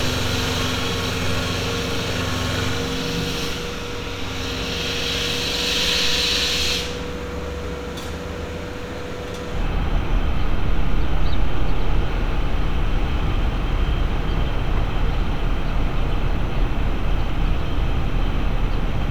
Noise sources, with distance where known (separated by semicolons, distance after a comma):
unidentified impact machinery